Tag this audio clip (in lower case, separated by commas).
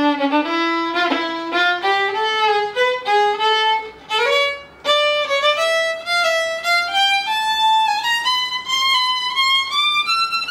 musical instrument, music, fiddle